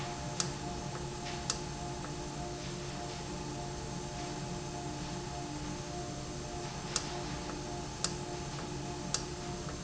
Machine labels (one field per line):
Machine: valve